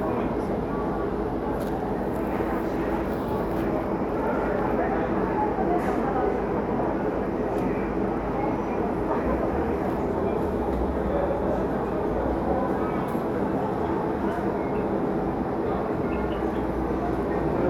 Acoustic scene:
crowded indoor space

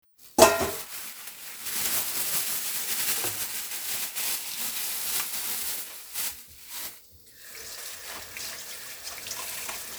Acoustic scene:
kitchen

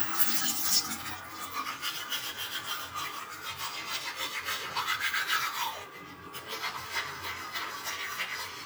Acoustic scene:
restroom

